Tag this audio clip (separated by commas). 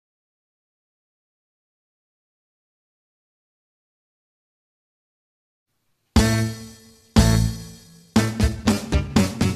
Music